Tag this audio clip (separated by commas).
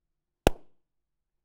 Explosion